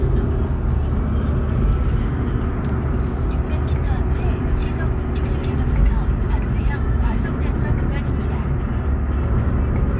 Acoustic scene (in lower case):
car